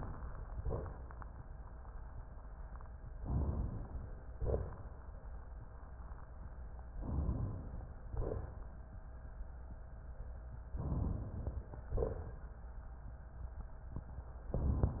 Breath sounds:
0.58-1.11 s: exhalation
3.17-4.25 s: inhalation
4.40-5.03 s: exhalation
6.96-7.92 s: inhalation
8.13-8.78 s: exhalation
10.77-11.82 s: inhalation
10.77-11.82 s: crackles
11.94-12.60 s: exhalation

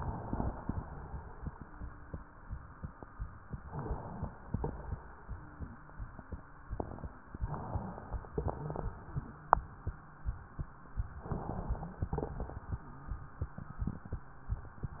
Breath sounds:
3.62-4.42 s: inhalation
4.42-5.01 s: exhalation
4.50-5.01 s: crackles
8.32-8.96 s: exhalation
8.35-8.85 s: crackles
11.14-11.99 s: inhalation
11.97-12.79 s: crackles
11.99-12.82 s: exhalation
14.96-15.00 s: inhalation

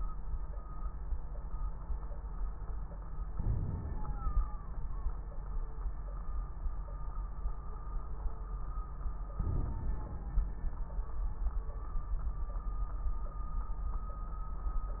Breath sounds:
3.35-4.48 s: inhalation
3.35-4.48 s: crackles
9.33-10.45 s: inhalation
9.33-10.45 s: crackles

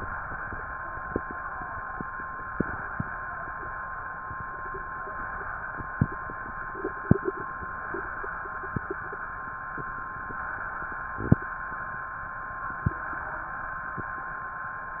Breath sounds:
2.46-3.14 s: inhalation
5.17-5.84 s: inhalation
7.65-8.33 s: inhalation
10.23-10.91 s: inhalation
12.90-13.58 s: inhalation

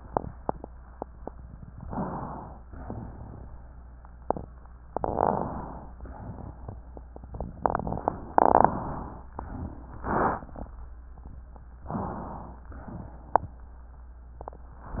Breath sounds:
1.83-2.64 s: inhalation
2.68-3.49 s: exhalation
4.86-5.89 s: inhalation
5.93-6.79 s: exhalation
8.30-9.23 s: inhalation
9.39-10.66 s: exhalation
11.89-12.68 s: inhalation
12.70-13.49 s: exhalation

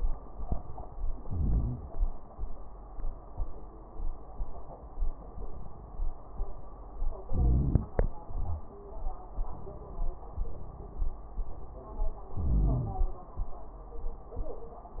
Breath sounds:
1.19-2.02 s: inhalation
1.19-2.02 s: crackles
7.28-8.10 s: inhalation
7.28-8.10 s: crackles
12.32-13.15 s: inhalation
12.32-13.15 s: crackles

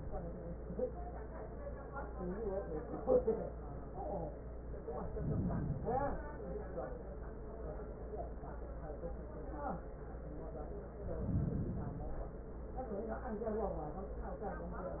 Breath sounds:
4.94-6.35 s: inhalation
11.03-12.44 s: inhalation

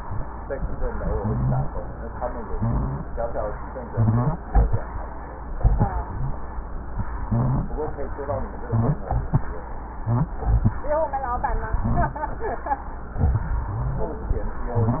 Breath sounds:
1.08-1.73 s: wheeze
2.50-3.15 s: wheeze
3.91-4.42 s: wheeze
5.98-6.35 s: wheeze
7.23-7.74 s: wheeze
8.63-9.11 s: wheeze
10.00-10.37 s: wheeze
11.80-12.28 s: wheeze
13.66-14.14 s: wheeze
14.63-15.00 s: wheeze

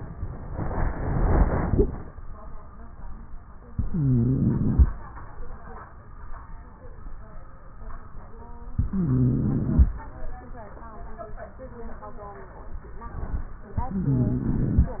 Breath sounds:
3.72-4.86 s: inhalation
3.72-4.86 s: wheeze
8.77-9.91 s: inhalation
8.77-9.91 s: wheeze
13.84-14.97 s: inhalation
13.84-14.97 s: wheeze

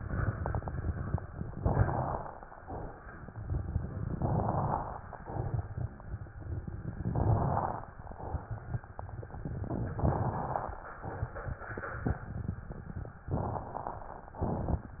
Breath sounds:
1.50-2.41 s: inhalation
1.50-2.41 s: crackles
4.14-5.05 s: inhalation
4.14-5.05 s: crackles
7.06-7.97 s: inhalation
7.06-7.97 s: crackles
9.90-10.82 s: inhalation
9.90-10.82 s: crackles
13.36-14.27 s: inhalation
13.36-14.27 s: crackles

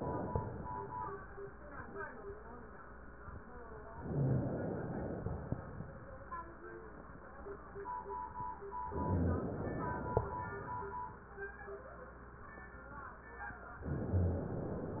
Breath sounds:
3.91-5.47 s: inhalation
5.47-6.36 s: exhalation
8.96-10.17 s: inhalation
10.17-11.06 s: exhalation
13.83-15.00 s: inhalation

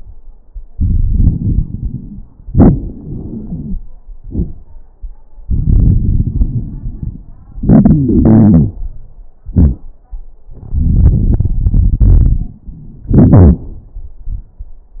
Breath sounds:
0.74-2.26 s: inhalation
0.74-2.26 s: crackles
2.53-3.79 s: exhalation
3.22-3.79 s: wheeze
5.43-7.35 s: inhalation
5.43-7.35 s: crackles
7.39-8.83 s: exhalation
7.62-8.83 s: wheeze
10.54-12.65 s: inhalation
10.54-12.65 s: crackles
13.07-13.63 s: wheeze
13.07-13.80 s: exhalation

